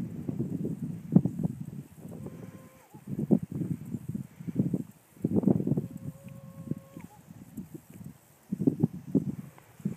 A horse calls out